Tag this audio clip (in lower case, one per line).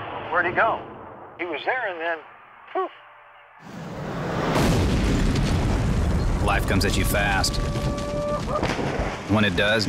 speech